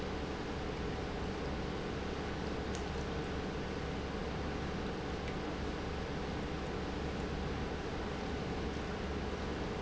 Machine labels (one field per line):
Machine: pump